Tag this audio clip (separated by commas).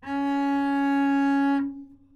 Musical instrument, Bowed string instrument, Music